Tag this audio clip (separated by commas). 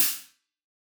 Musical instrument, Hi-hat, Cymbal, Music, Percussion